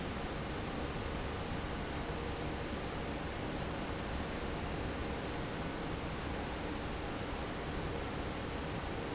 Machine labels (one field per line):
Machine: fan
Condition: normal